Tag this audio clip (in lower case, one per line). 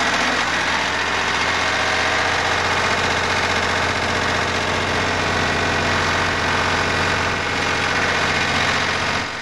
drill